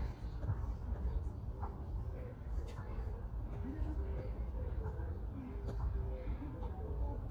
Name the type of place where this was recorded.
park